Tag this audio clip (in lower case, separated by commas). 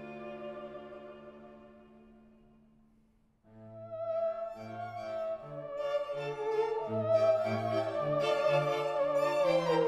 playing theremin